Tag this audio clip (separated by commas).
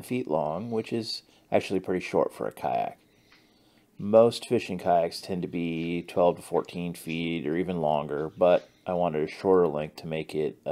Speech